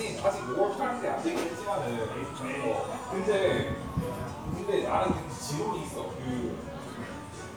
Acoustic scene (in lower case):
crowded indoor space